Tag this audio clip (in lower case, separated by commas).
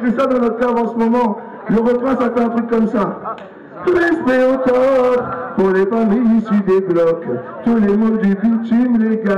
speech